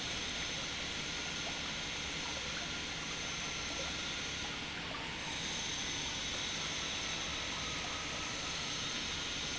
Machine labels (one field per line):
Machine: pump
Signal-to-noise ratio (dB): -6 dB